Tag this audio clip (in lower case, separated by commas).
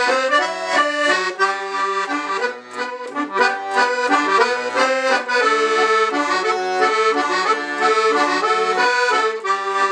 accordion, music, playing accordion